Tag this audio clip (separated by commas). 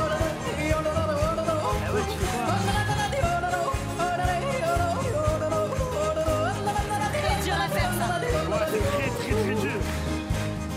yodelling